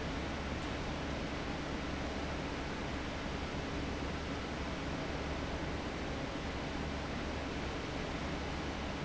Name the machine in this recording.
fan